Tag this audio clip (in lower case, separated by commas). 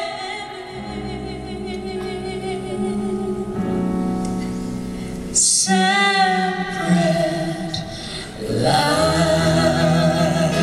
singing